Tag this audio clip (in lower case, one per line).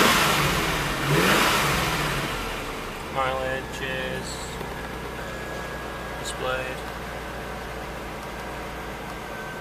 accelerating
vehicle
heavy engine (low frequency)
speech